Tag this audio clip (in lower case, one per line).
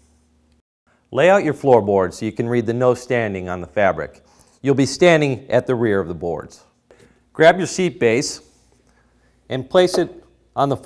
speech